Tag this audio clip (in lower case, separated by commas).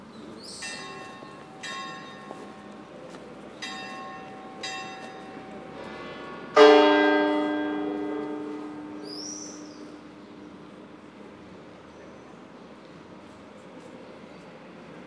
church bell, bell